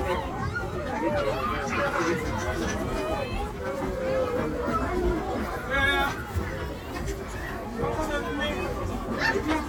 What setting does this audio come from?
park